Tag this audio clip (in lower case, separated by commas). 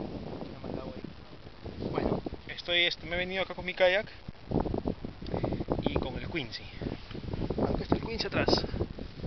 speech